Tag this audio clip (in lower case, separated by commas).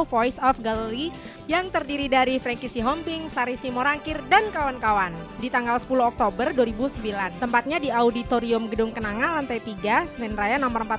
music, speech